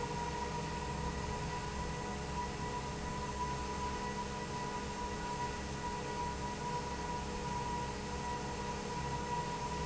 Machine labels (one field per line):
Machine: fan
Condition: normal